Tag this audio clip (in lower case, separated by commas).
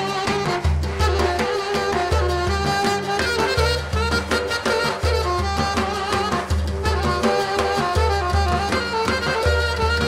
folk music, musical instrument, music, drum, percussion